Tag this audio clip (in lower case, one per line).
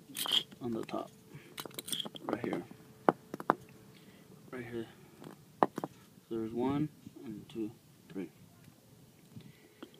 speech